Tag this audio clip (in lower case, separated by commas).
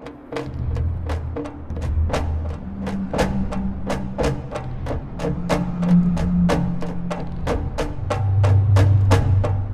music